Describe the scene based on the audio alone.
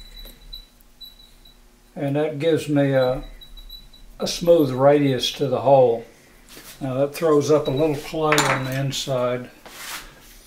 Squeaking is occurring, an adult male speaks, and a clatter occurs